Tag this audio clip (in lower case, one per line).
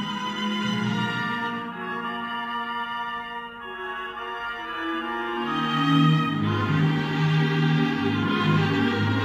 music